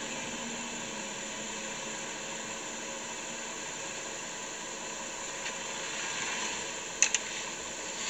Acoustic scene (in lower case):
car